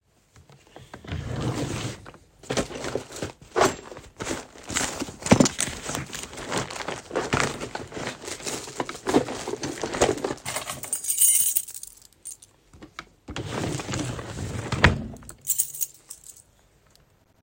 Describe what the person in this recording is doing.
I opened the drawer to look for my keys, then I found it and closed the drawer.